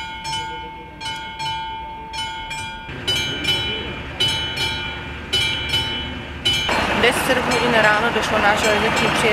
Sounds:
Speech, Vehicle

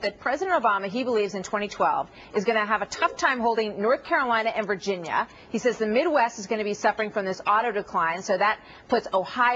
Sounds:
Speech

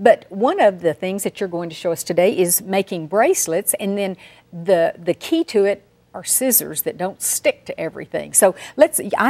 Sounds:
Speech

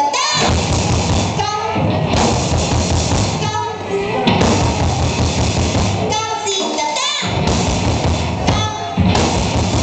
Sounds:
Speech, Music

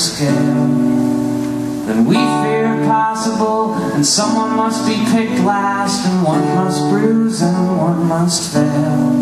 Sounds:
Music

